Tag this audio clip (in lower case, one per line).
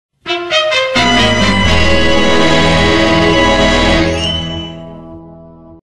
music